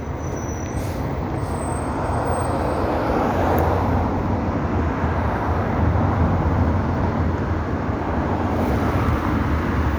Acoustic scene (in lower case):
street